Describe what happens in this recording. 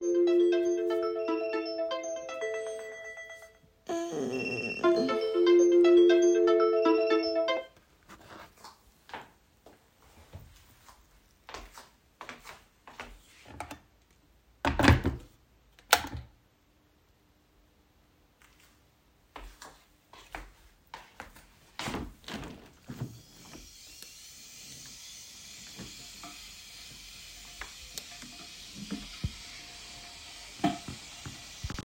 My alarm started ringing so I woke up. I turned off the alarm and walked toward the electric kettle. I placed the kettle on its base and turned it on. Then I walked toward the window and opened it while the water started boiling.